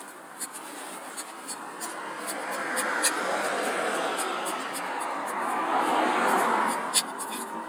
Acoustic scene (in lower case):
street